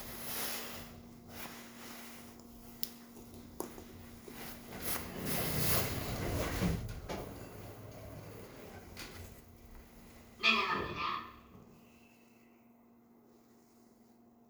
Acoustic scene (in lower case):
elevator